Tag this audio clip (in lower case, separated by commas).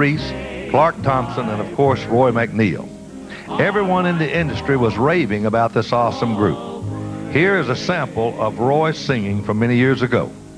music, speech